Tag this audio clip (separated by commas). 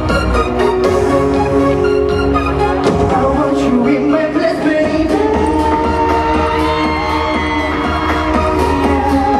Yell, Singing, Music